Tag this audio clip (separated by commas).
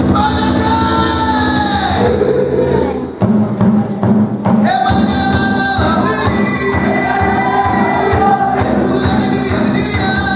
Choir, Music, Singing